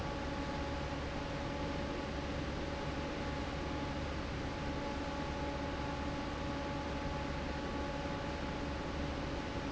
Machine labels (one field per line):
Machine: fan